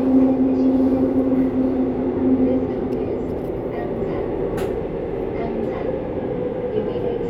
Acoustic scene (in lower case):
subway train